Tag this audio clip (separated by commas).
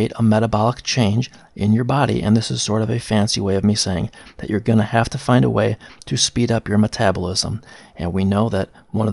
Speech